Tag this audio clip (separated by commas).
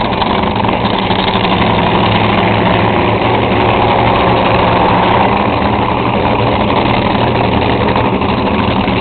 Motor vehicle (road), Car, Vehicle